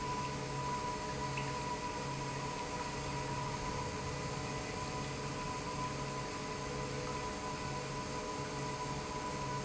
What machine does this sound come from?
pump